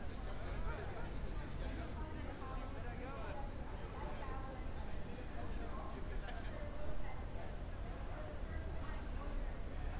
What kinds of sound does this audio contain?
person or small group talking